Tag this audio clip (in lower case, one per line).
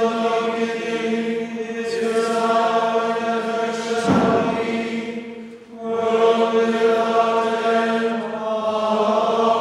mantra